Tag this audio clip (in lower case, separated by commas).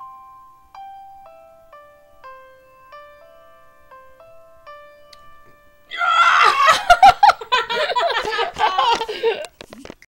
tender music, music